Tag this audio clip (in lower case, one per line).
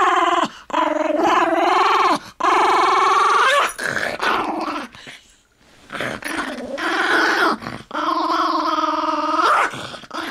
dog growling